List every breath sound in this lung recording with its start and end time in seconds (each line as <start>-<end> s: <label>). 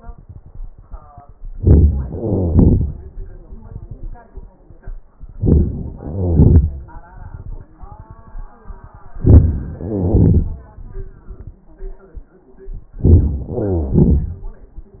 1.50-2.11 s: inhalation
2.11-3.54 s: exhalation
5.26-5.97 s: inhalation
5.96-7.62 s: exhalation
9.12-9.83 s: inhalation
9.84-11.61 s: exhalation
12.88-13.50 s: inhalation
13.49-14.97 s: exhalation